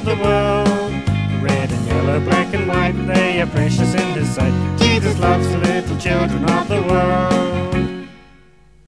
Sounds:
music

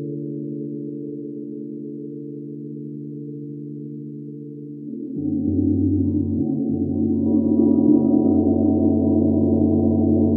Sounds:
playing gong

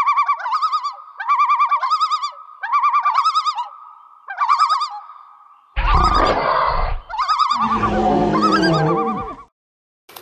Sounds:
wild animals, outside, rural or natural

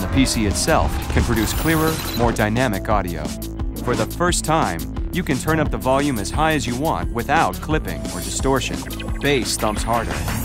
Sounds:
speech, music

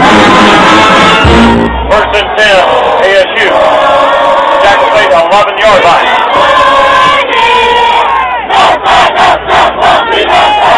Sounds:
inside a public space, music, speech, outside, urban or man-made

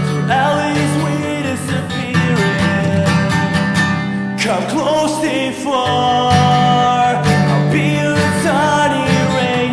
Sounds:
music, country

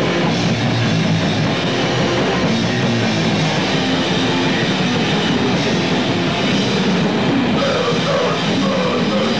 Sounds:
cacophony, vibration, music

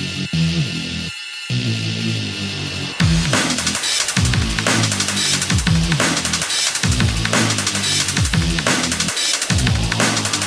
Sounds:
techno, music, electronic music

